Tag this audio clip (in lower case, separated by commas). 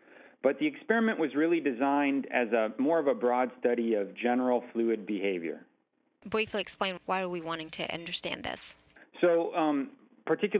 speech